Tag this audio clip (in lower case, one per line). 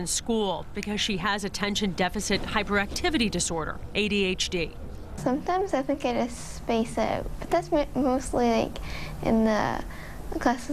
woman speaking